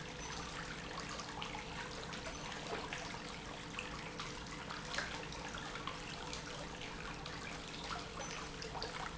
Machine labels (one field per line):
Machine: pump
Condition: normal